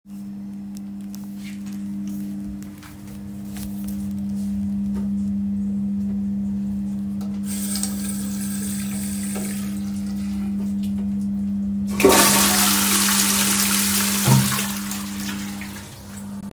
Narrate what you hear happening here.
I flushed the toilet and then washed my hands at the sink using soap from the dispenser. The microphone moved slightly but remained nearby, capturing the initial surge and sustained water flow with soft towel handling.